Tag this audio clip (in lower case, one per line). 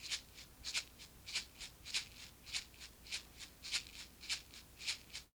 music
rattle (instrument)
musical instrument
percussion